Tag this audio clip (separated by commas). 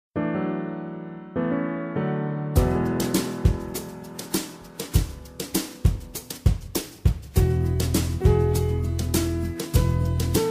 Electric piano, Music